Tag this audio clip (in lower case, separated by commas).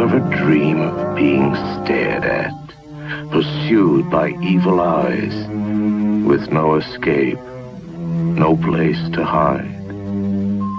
monologue, speech, music